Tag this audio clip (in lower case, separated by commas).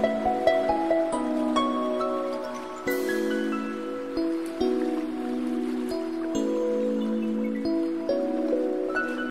music, outside, rural or natural